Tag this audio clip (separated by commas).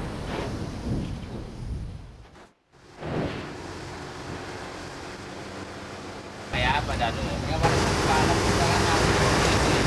volcano explosion